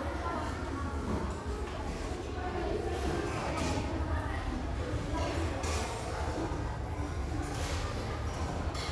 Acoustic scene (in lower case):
restaurant